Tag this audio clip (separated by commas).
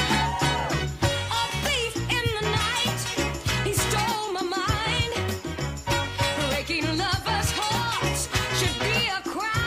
Rhythm and blues, Music